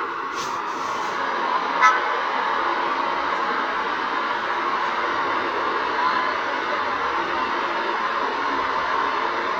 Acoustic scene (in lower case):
street